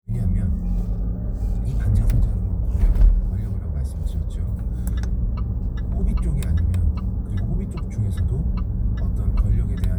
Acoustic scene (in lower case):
car